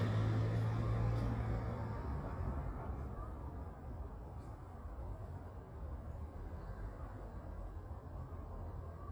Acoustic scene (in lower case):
residential area